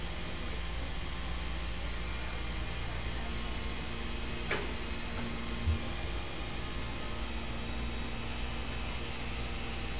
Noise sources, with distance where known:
unidentified powered saw, far; person or small group talking

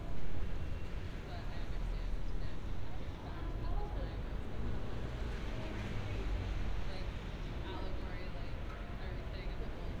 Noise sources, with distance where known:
person or small group talking, far

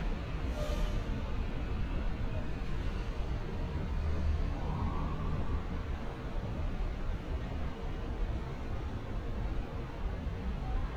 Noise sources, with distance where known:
siren

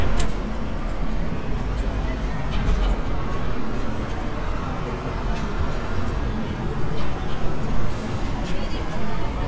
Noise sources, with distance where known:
engine of unclear size; person or small group talking, far

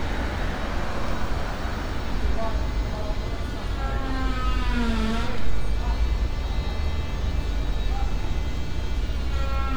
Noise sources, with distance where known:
chainsaw, near

